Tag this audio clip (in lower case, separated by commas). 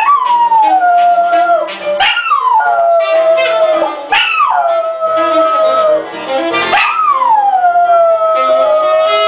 music, bow-wow